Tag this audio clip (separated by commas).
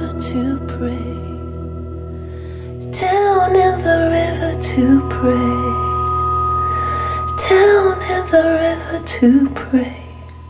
Singing